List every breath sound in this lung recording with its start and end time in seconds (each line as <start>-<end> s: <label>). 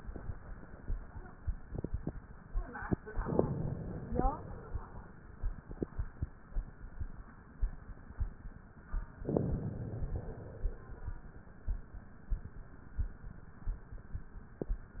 3.23-4.21 s: inhalation
4.21-5.26 s: exhalation
9.26-10.15 s: inhalation
10.15-11.18 s: exhalation